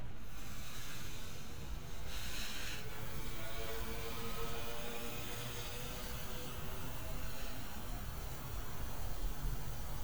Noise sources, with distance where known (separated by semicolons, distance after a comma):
engine of unclear size